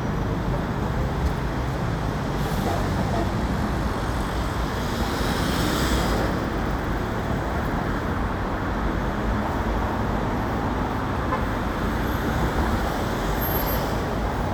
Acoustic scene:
street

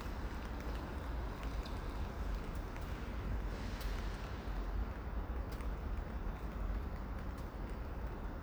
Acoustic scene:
residential area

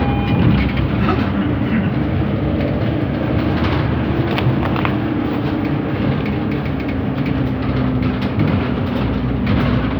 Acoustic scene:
bus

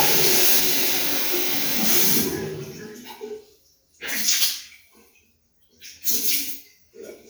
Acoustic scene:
restroom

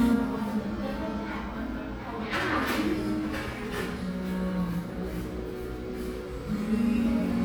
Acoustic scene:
cafe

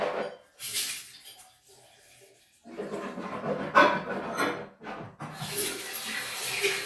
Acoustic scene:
restroom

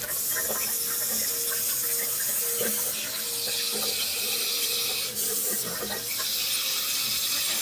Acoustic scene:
restroom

